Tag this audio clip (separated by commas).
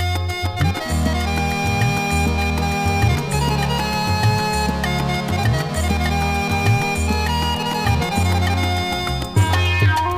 Music